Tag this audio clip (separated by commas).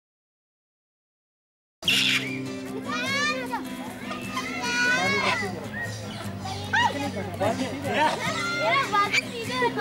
Music, Speech, outside, urban or man-made, Bird, Domestic animals